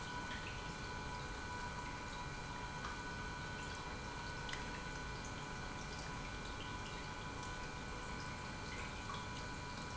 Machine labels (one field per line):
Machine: pump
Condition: normal